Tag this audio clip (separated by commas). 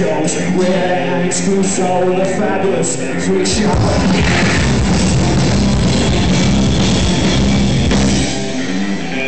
Reverberation, Music